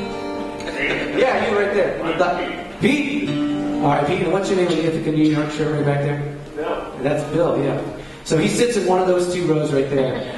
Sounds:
Music, Speech

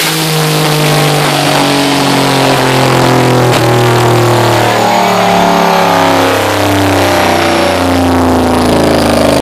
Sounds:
Vehicle

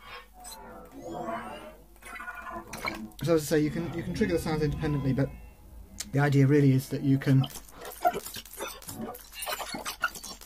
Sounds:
Speech

